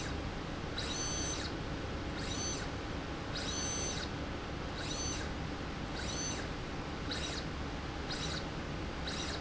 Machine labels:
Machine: slide rail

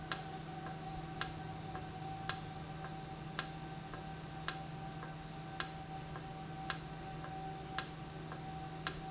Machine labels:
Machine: valve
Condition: normal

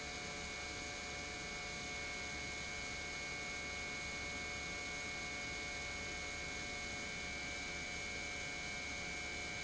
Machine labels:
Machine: pump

